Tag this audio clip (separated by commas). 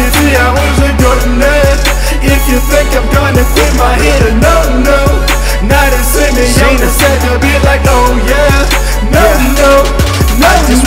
Music